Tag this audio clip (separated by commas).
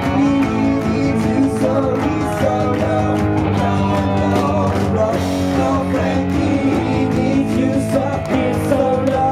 Rock music, Music, Singing, Guitar